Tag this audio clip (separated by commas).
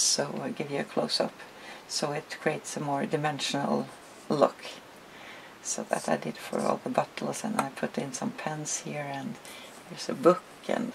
Speech, inside a small room